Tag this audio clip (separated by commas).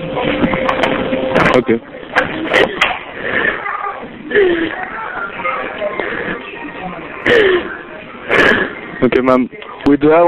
Music, Speech